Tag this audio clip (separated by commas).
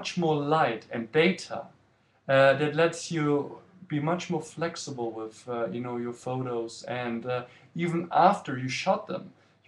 Speech